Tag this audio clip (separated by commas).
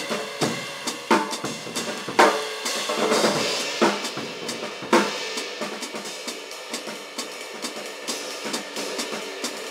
playing cymbal